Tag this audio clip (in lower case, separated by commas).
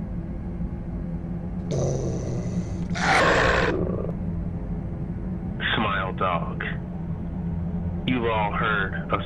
dog, pets, animal, speech, yip